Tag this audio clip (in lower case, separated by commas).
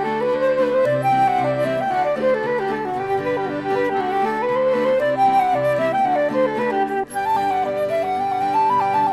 flute, music